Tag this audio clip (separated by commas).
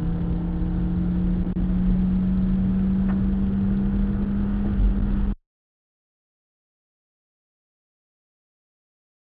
Car passing by, Car, Vehicle